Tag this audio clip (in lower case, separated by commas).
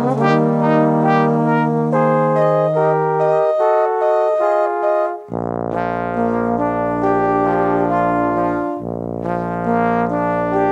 playing trombone